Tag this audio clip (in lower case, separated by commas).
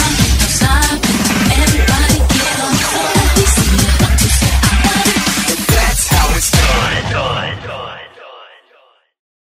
music, pop music